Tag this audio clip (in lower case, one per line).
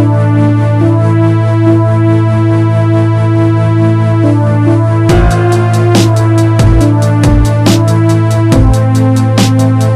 dubstep
music